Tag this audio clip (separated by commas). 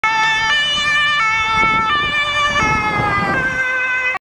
Vehicle, Police car (siren), Car